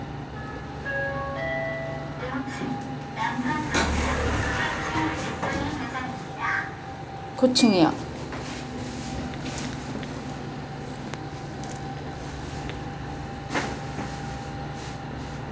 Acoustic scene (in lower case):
elevator